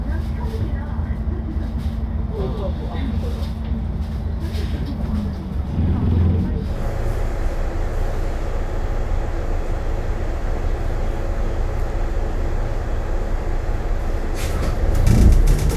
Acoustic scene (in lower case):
bus